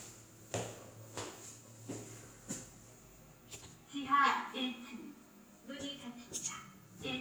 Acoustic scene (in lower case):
elevator